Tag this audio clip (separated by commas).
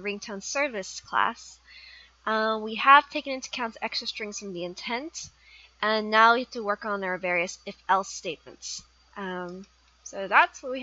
Speech